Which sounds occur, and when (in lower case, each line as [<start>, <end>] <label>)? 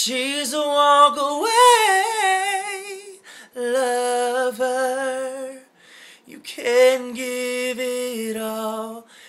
[0.00, 3.17] male singing
[0.00, 9.25] mechanisms
[3.17, 3.49] breathing
[3.50, 5.66] male singing
[5.71, 6.21] breathing
[6.22, 9.02] male singing
[9.03, 9.25] breathing